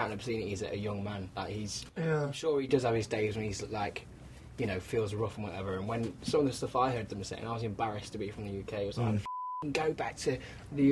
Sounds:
speech

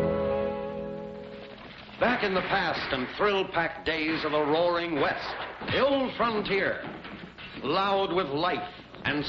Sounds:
music, swing music, speech

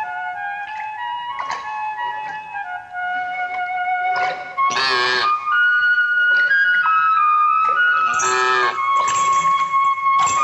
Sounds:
music, playing flute, flute

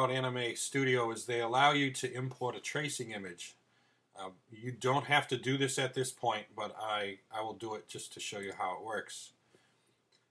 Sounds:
speech

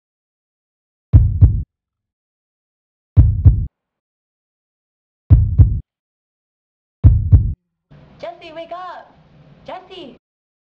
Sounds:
speech

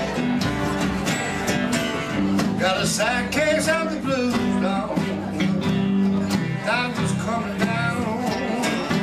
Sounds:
music, rhythm and blues

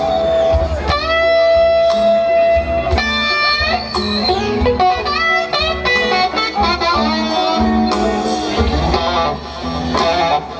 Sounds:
plucked string instrument, music, musical instrument, strum, electric guitar, guitar

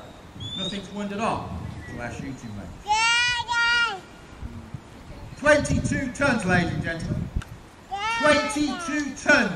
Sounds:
outside, rural or natural, speech

